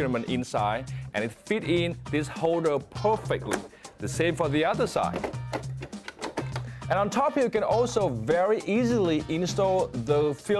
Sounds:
Music, Speech

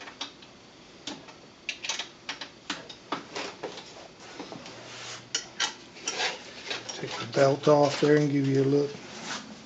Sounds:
Tools, Speech

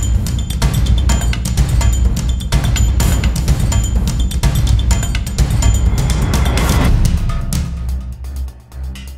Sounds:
Music

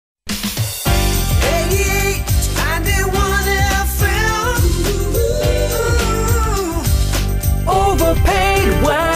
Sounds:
Jingle

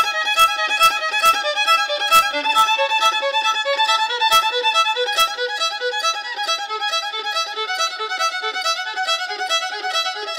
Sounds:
fiddle, Musical instrument, playing violin, Music

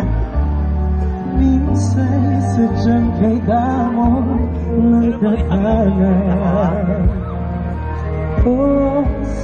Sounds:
Music, Speech, Male singing

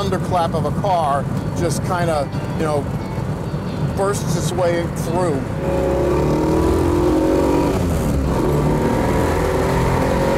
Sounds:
Music, Speech, Vehicle, Car

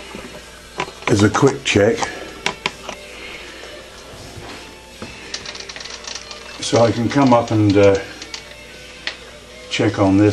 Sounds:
Music, Speech

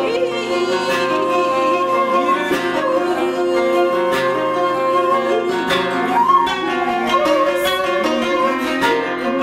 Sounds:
Musical instrument, Music

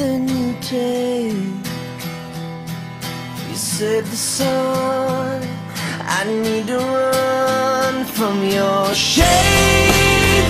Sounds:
Music

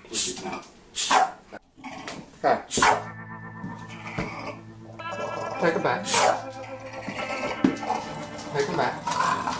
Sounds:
dog growling

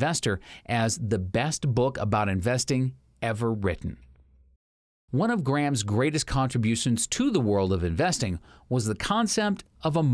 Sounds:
Speech synthesizer

